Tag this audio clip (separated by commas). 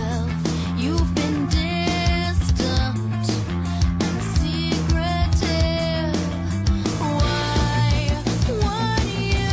Pop music, Music